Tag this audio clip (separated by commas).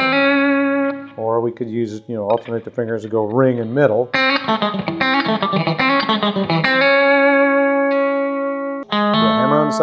Strum, Speech, Guitar, Music, Musical instrument, Bass guitar, Plucked string instrument